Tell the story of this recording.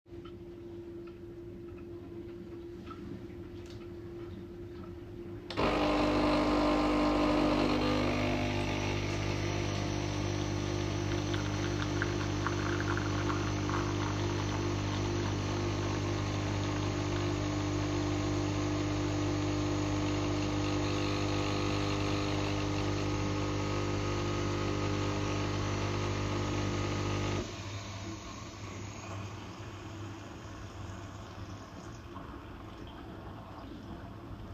I stood in the kitchen, took a coffee pad and put it in the machine. Afterwards, I switched on the coffee machine and waited, until the cup was full.